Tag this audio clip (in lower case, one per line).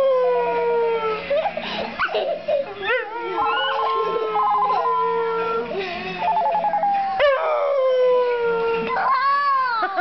bow-wow